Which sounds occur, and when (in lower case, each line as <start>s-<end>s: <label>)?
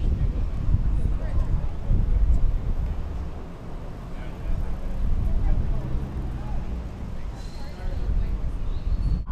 0.0s-9.2s: vehicle
0.0s-1.7s: wind noise (microphone)
0.1s-0.5s: man speaking
0.8s-2.4s: man speaking
1.1s-1.4s: footsteps
1.8s-2.3s: wind noise (microphone)
2.2s-2.4s: footsteps
2.8s-2.9s: footsteps
3.1s-3.3s: footsteps
4.1s-4.9s: man speaking
5.0s-5.8s: wind noise (microphone)
5.2s-6.0s: human voice
6.3s-6.6s: shout
7.1s-7.4s: man speaking
7.5s-8.6s: woman speaking
8.6s-9.2s: whistling